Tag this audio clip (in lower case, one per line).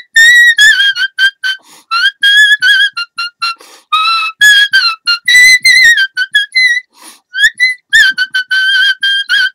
whistle